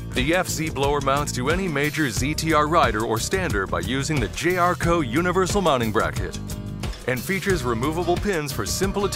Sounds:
speech, music

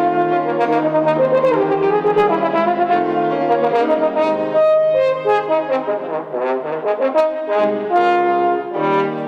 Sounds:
musical instrument, playing french horn, french horn, music, brass instrument

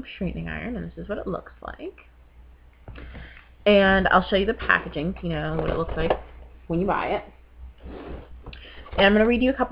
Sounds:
speech

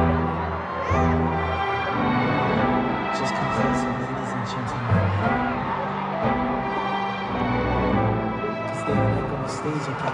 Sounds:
music, speech

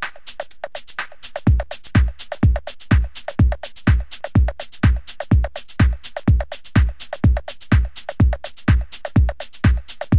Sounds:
techno, drum machine, music

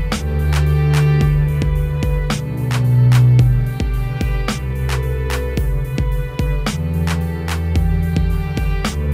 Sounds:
music

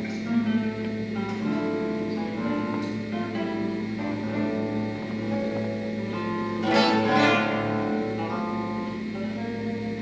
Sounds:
music, plucked string instrument, musical instrument, guitar

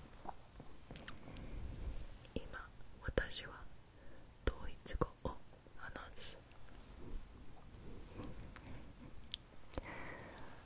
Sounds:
people whispering

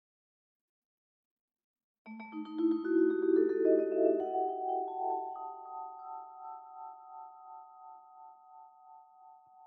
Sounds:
playing vibraphone

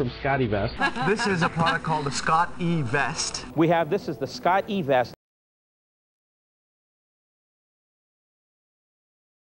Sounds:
speech

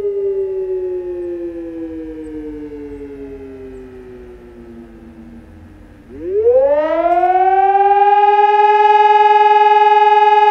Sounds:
civil defense siren

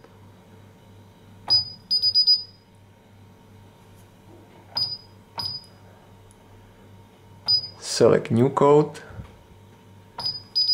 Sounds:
inside a small room, speech

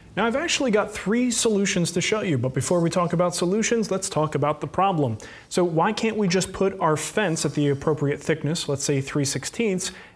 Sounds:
speech

